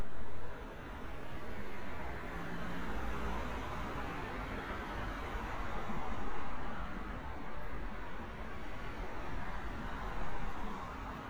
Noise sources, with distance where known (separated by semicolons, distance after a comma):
engine of unclear size, near